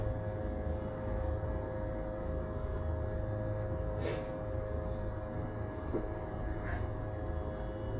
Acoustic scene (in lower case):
bus